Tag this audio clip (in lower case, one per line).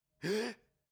respiratory sounds
breathing
gasp